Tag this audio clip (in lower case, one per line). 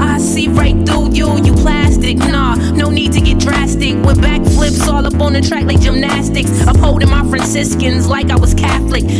music